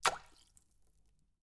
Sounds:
liquid, splash

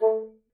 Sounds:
musical instrument, wind instrument, music

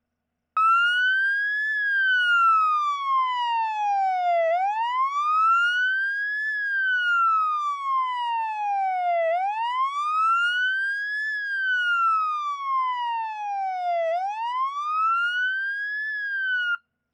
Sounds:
siren, motor vehicle (road), vehicle, alarm

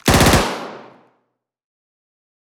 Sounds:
explosion, gunshot

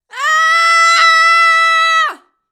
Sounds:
screaming, human voice

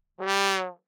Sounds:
brass instrument, musical instrument, music

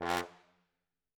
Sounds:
brass instrument, musical instrument, music

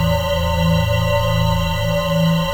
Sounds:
musical instrument, organ, music, keyboard (musical)

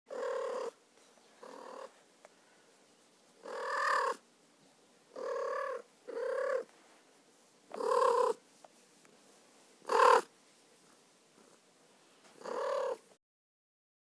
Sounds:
animal, cat, domestic animals

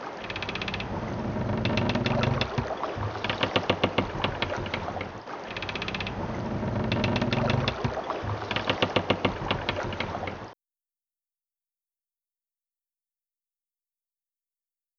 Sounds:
water vehicle, vehicle

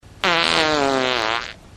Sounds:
fart

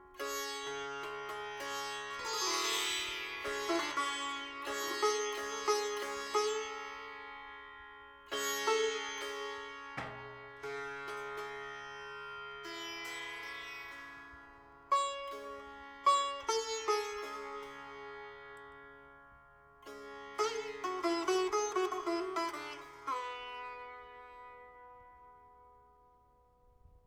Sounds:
music, plucked string instrument, musical instrument

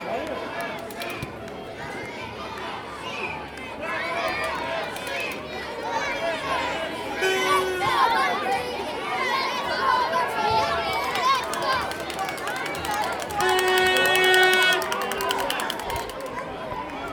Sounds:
human group actions, crowd

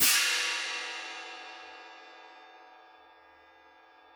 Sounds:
hi-hat, cymbal, musical instrument, music, percussion

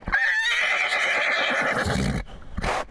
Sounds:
livestock, animal

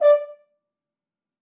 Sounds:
brass instrument, musical instrument, music

